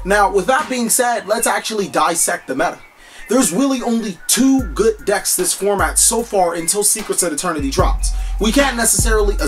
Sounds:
speech
music

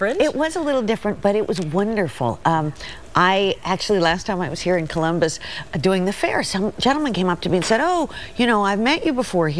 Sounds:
speech

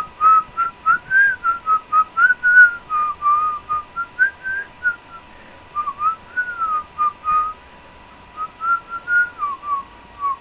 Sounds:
whistling

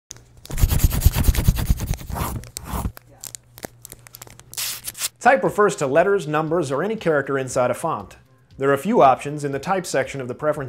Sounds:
speech
inside a small room

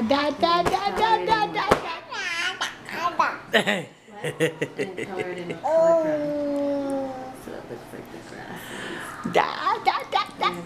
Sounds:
speech

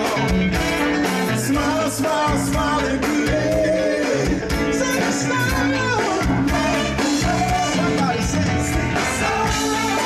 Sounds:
music of latin america
music

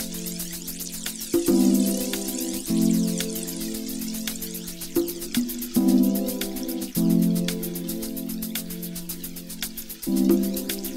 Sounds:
music

